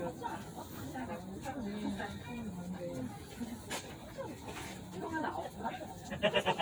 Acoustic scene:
residential area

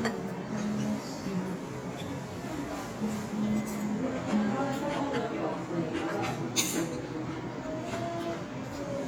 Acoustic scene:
restaurant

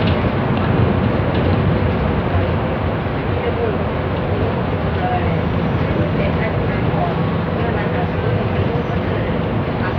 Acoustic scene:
bus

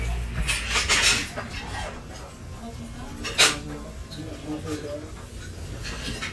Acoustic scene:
restaurant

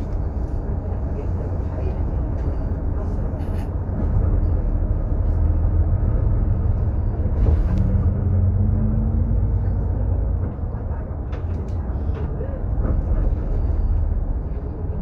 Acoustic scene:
bus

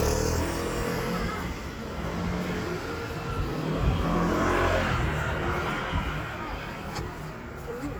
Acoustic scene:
street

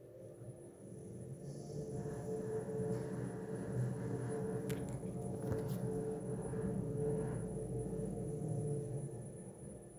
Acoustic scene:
elevator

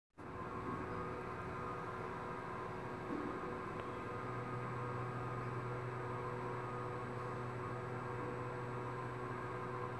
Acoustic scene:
elevator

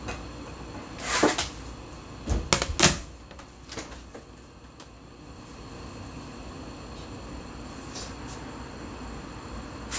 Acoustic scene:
kitchen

